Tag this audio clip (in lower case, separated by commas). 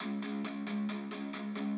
plucked string instrument, guitar, musical instrument, music, electric guitar